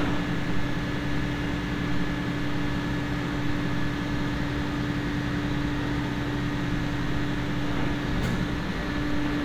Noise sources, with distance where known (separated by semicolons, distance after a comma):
large-sounding engine; engine of unclear size